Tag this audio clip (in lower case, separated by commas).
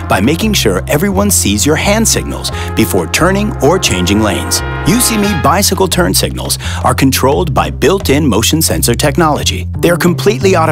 speech, music